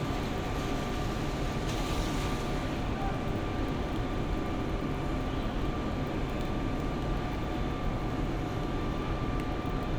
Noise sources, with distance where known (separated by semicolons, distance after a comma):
engine of unclear size, near; person or small group shouting, far